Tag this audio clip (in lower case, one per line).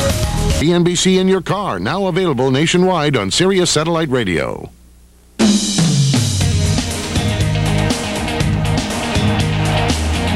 speech
music